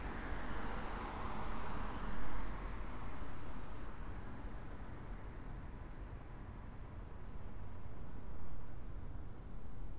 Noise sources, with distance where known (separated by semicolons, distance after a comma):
engine of unclear size, far